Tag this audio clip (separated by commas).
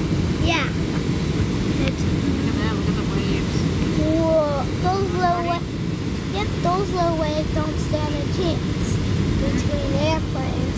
Speech